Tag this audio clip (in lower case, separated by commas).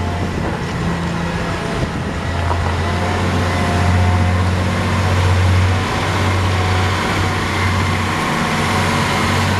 vehicle